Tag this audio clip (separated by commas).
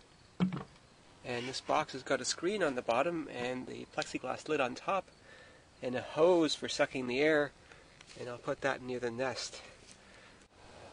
Speech